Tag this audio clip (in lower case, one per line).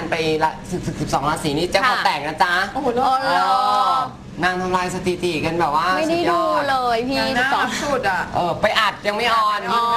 speech